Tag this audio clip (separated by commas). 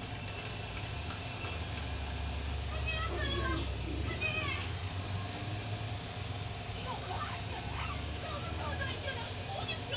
Speech